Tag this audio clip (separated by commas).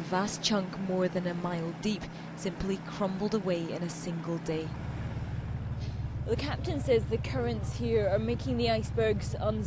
Speech, Vehicle